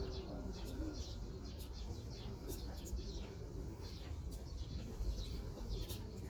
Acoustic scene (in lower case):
park